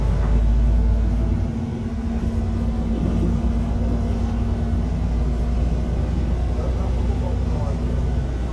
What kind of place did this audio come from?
bus